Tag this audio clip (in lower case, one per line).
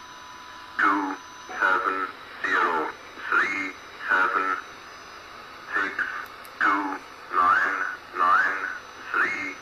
speech
radio